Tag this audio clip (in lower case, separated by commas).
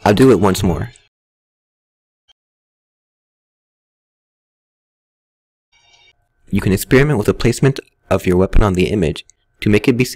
speech, narration